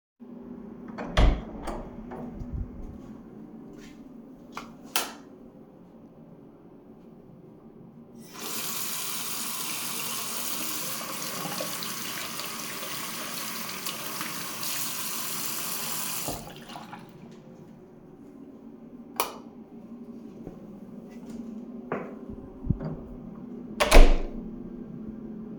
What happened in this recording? I opened the bathroom door, turned on the light, turned on the water, washed my face, turned off the water, turned off the light, and finally closed the door.